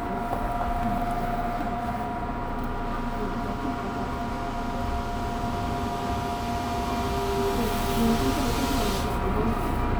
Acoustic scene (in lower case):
subway train